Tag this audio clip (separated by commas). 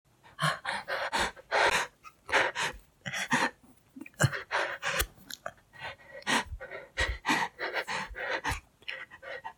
Respiratory sounds, Breathing